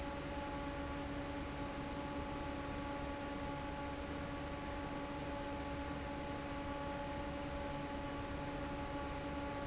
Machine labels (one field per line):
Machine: fan